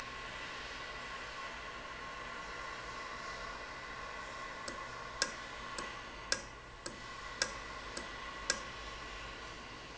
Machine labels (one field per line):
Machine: valve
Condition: normal